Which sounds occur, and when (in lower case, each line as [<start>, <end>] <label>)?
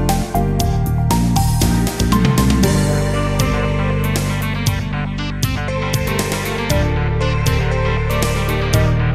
[0.00, 9.14] music